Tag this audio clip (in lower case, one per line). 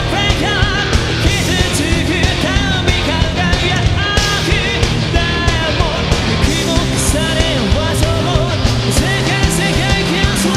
heavy metal
music
singing